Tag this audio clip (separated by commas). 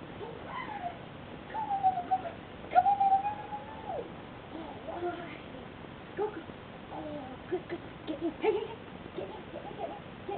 Dog, Speech, Domestic animals, Animal